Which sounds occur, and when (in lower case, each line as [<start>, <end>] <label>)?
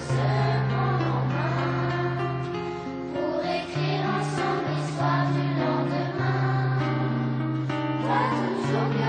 [0.01, 9.05] music
[0.05, 2.42] choir
[3.17, 7.15] choir
[7.72, 9.05] choir